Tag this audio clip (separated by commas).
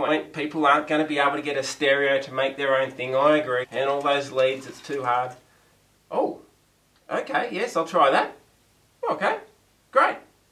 Speech